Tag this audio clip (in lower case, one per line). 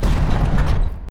door
domestic sounds
sliding door